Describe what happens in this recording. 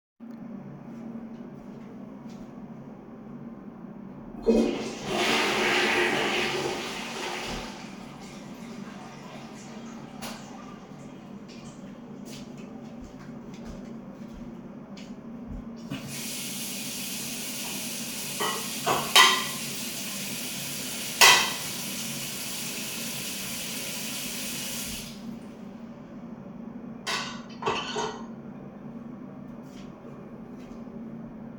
I flushed the toilet, turned off the light, walked over to the sink, turned on the water, and started washing the dishes. All this time, there was the ventilation system running.